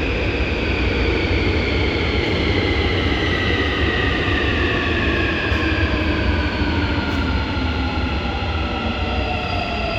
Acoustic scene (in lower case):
subway station